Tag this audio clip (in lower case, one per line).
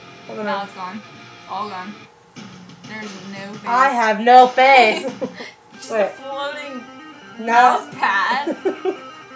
music
speech